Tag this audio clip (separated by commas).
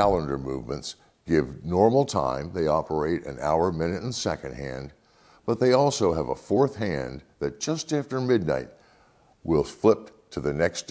Speech